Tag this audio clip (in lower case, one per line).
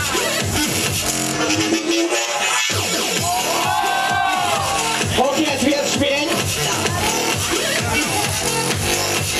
speech
music